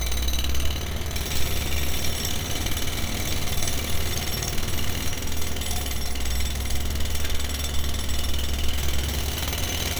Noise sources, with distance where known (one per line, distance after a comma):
jackhammer, near